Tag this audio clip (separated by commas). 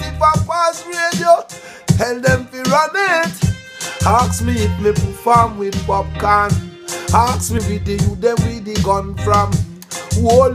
Reggae, Music